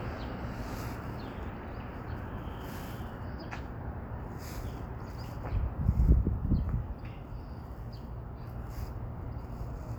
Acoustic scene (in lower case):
street